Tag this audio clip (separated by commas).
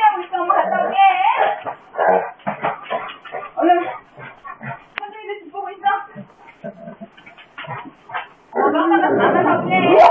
Speech